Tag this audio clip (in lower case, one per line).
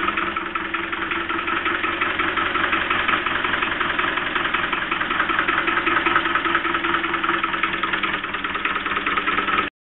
engine
medium engine (mid frequency)
idling